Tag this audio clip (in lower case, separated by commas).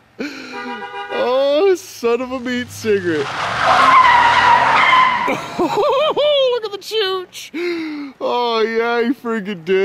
skidding